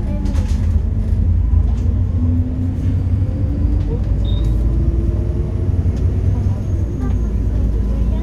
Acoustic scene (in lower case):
bus